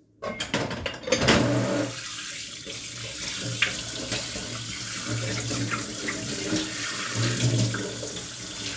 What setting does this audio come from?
kitchen